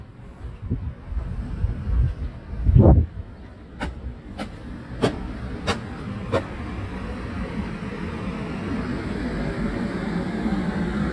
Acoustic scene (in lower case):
residential area